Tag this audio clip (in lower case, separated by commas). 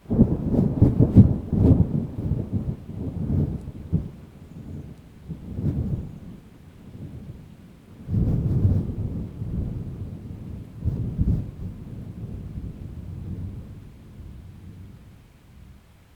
wind, thunder, thunderstorm